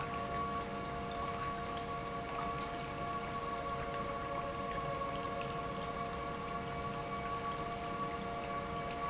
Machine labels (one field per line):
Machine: pump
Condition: normal